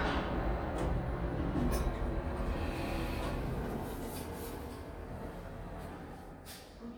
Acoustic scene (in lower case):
elevator